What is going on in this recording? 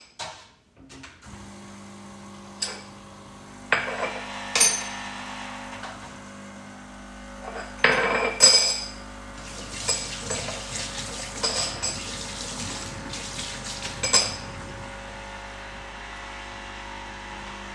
I turned on the coffee machine and while it was running, I opened the tap to wash up the saucer and the spoon that I then used for my cup of coffee.